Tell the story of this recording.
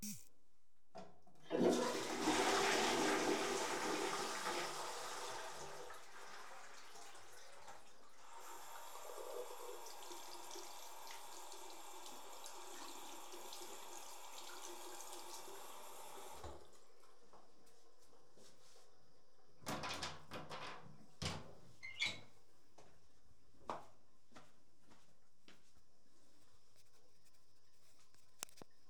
Toilet was flushing, I washed my hands and after opening the lock left the toilet.